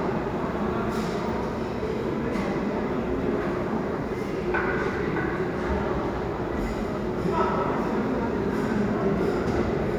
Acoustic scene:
restaurant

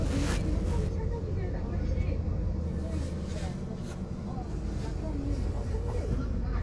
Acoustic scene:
car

